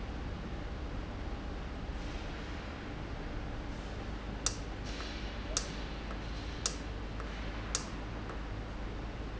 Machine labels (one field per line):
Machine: valve